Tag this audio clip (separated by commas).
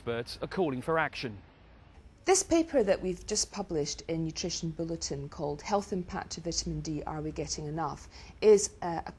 Speech, man speaking